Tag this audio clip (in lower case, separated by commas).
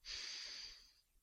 respiratory sounds